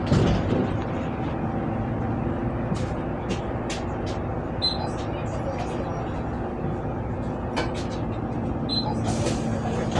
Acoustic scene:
bus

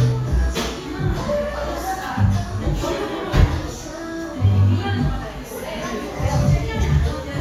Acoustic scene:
cafe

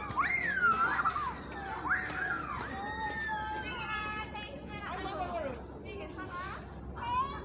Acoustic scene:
park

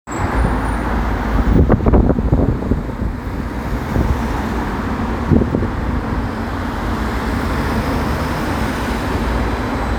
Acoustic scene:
street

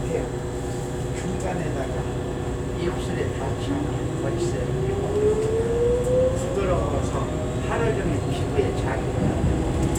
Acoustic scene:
subway train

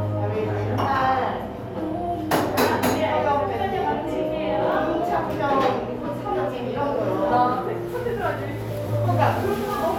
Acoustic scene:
cafe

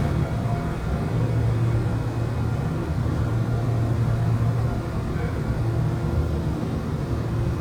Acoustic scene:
subway train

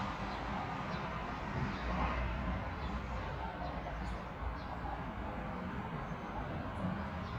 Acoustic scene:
park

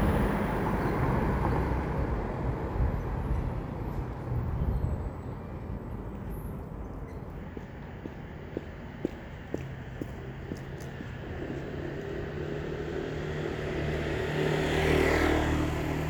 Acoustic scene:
street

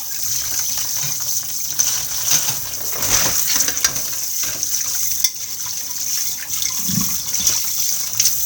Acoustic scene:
kitchen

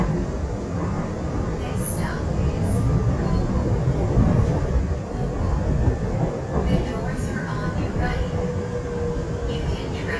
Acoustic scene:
subway train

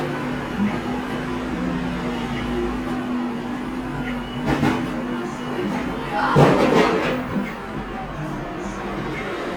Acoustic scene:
cafe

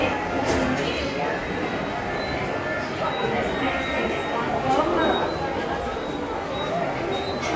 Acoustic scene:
subway station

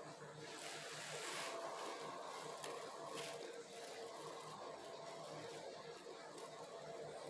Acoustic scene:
elevator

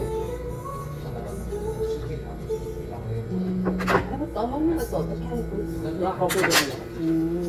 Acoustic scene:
crowded indoor space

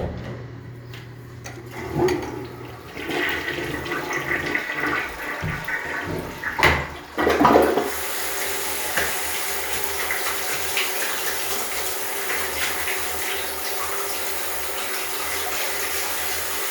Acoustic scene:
restroom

